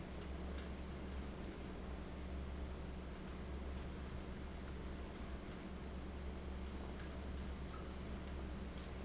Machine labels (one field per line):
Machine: fan